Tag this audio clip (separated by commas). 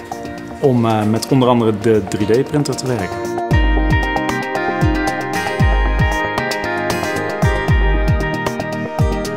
Speech, Music